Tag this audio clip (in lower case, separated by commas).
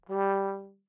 music, musical instrument, brass instrument